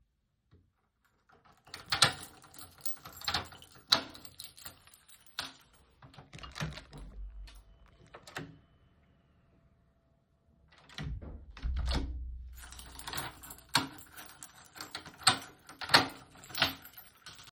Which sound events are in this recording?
keys, door